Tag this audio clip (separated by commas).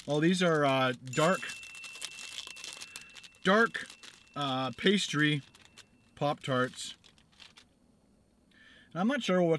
Speech